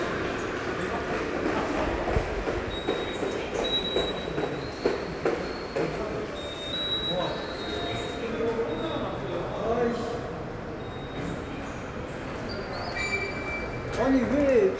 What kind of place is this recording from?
subway station